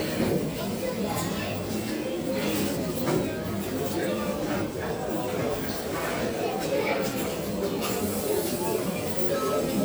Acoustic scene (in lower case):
crowded indoor space